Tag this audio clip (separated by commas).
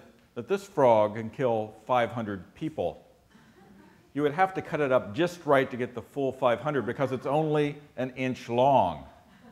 Speech